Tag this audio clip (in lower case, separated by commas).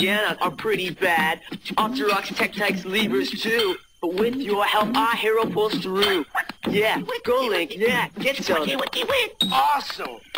speech